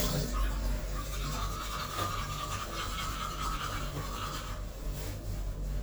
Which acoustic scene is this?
restroom